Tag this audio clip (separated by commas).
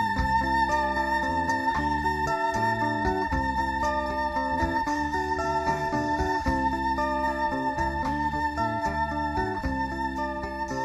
Guitar, Plucked string instrument, Music, Musical instrument